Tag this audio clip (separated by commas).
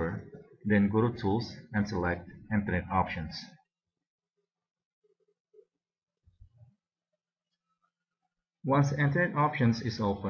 Speech